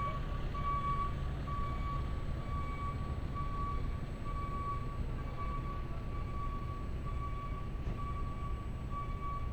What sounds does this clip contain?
reverse beeper